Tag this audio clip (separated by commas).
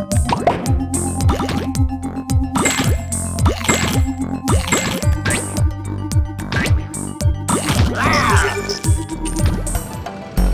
Music